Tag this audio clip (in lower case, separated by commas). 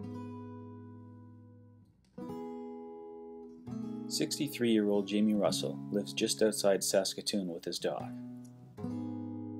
music, speech